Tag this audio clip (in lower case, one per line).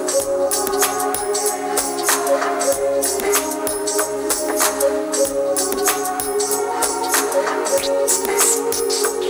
singing